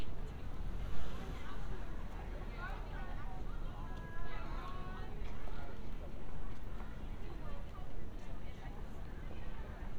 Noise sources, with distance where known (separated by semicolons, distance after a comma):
unidentified human voice